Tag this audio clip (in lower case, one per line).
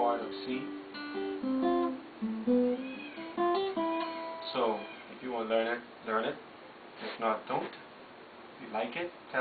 music
speech